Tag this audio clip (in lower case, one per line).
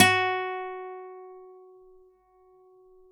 music
acoustic guitar
musical instrument
guitar
plucked string instrument